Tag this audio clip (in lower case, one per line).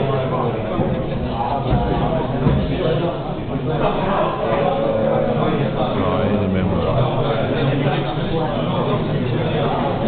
speech